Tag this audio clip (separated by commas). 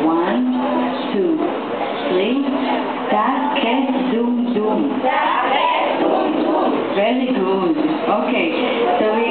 Speech